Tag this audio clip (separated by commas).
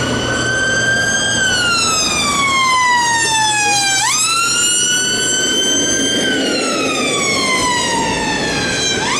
Siren, Emergency vehicle